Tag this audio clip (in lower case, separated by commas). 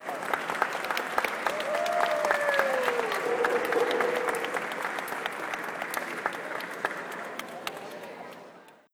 human group actions, cheering, applause, crowd